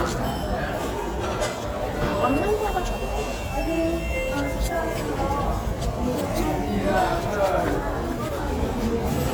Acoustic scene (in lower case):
restaurant